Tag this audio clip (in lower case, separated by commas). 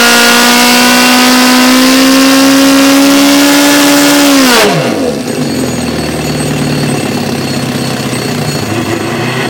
vehicle, vroom